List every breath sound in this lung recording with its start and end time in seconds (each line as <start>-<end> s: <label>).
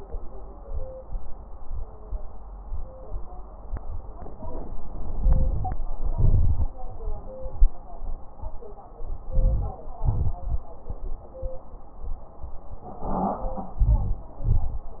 5.02-5.79 s: crackles
5.04-5.79 s: inhalation
6.00-6.77 s: crackles
6.04-6.79 s: exhalation
9.23-10.00 s: inhalation
9.23-10.00 s: crackles
10.01-10.78 s: exhalation
10.01-10.78 s: crackles
13.76-14.44 s: inhalation
13.76-14.44 s: crackles
14.46-15.00 s: exhalation
14.46-15.00 s: crackles